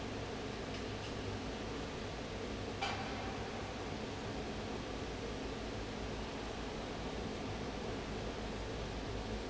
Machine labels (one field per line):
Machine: fan